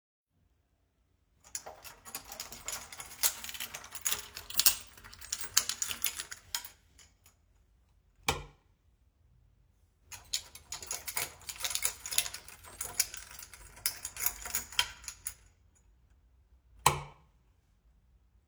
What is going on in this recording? I picked up my keys, turned on the light, then I put the keys down and turned the light off